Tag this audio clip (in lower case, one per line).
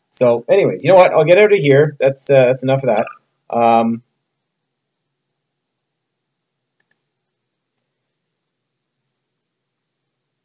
speech